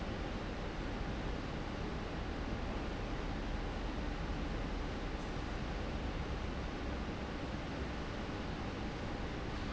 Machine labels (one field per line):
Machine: fan